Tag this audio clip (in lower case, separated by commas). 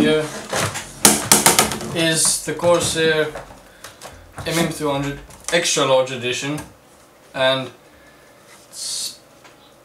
speech, inside a small room